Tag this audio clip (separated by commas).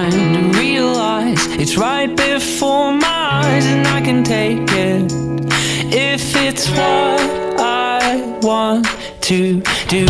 Music